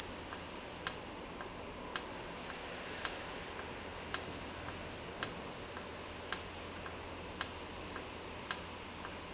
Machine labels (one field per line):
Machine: valve